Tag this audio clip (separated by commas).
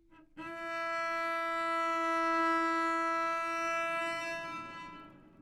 Musical instrument, Music, Bowed string instrument